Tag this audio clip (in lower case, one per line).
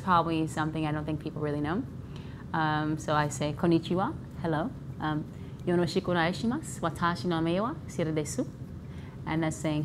inside a small room
speech